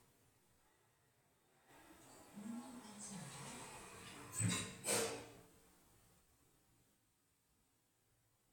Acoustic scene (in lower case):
elevator